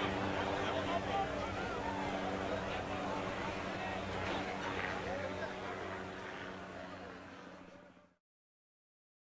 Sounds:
car, speech, car passing by, motor vehicle (road), vehicle

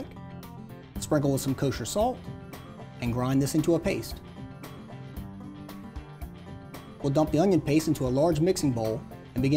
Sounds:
speech, music

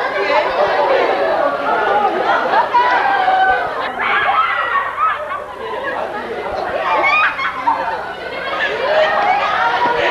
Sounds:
speech, inside a public space

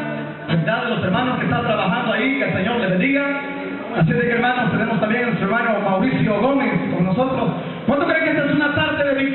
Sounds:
music, speech

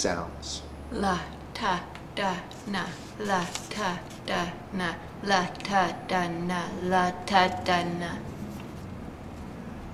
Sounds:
speech

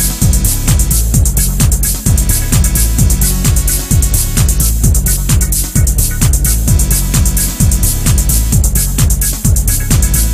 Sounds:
music

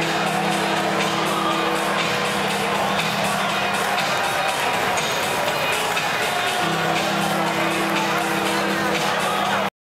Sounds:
music, speech

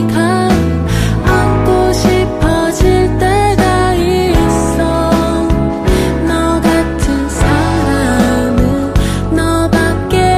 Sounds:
music

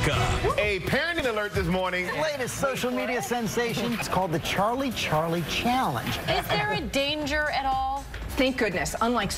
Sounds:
music, speech

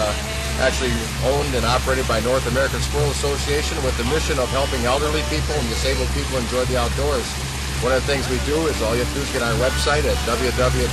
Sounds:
water vehicle, music, speech

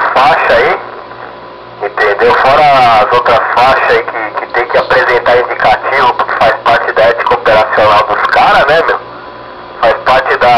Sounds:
speech, radio

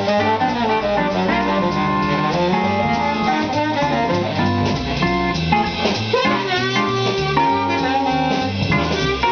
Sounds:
acoustic guitar, plucked string instrument, music, musical instrument, jazz

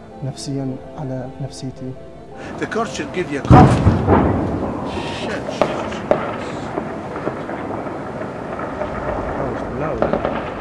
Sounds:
music, firecracker, speech, outside, urban or man-made

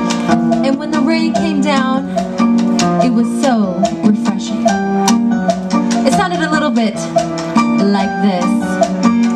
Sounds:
music, speech

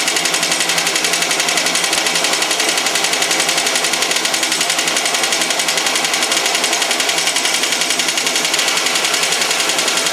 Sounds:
engine

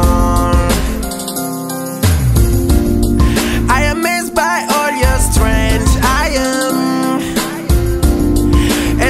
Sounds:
music

